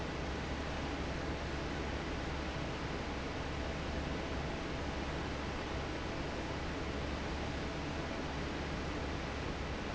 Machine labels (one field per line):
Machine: fan